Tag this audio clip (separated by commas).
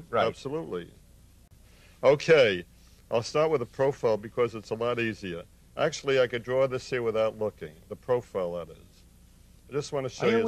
Speech